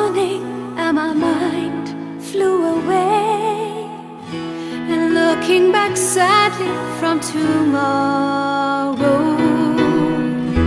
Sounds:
Music

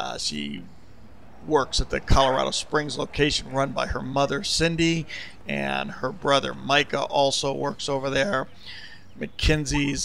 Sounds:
Speech

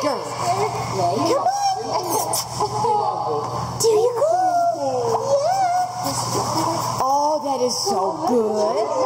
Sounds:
swimming

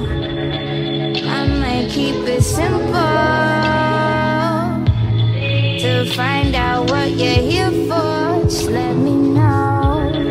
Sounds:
Music

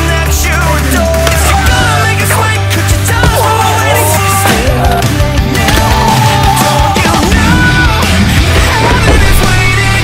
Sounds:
Music

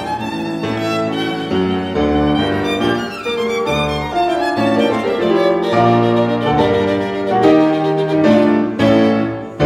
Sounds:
Musical instrument, Music, fiddle

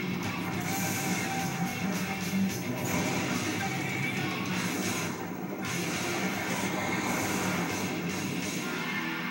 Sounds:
Musical instrument, Plucked string instrument, Music, Electric guitar, Guitar, Strum

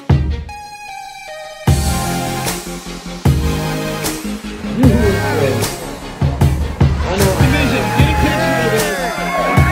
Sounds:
Music, Speech, outside, urban or man-made

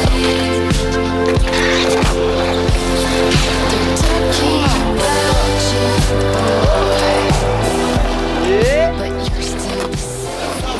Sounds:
Skateboard

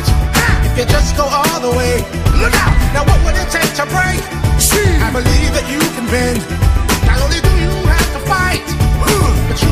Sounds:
Music

